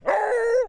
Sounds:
Dog, Animal, pets

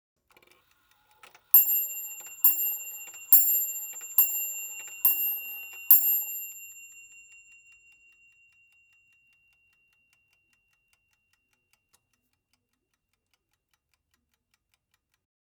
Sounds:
Mechanisms, Clock

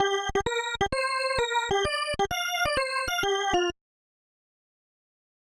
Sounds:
Organ, Keyboard (musical), Musical instrument, Music

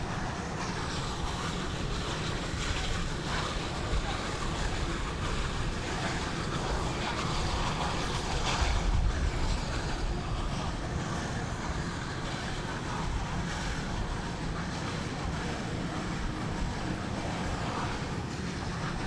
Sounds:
Vehicle, Train, Rail transport

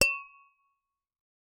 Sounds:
Tap, Glass

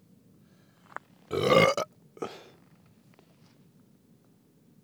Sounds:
eructation

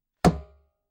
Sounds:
Thump

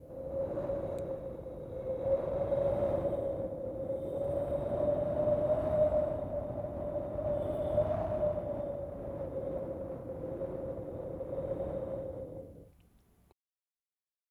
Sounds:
Wind

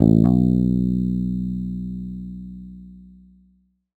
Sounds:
Guitar, Musical instrument, Bass guitar, Music, Plucked string instrument

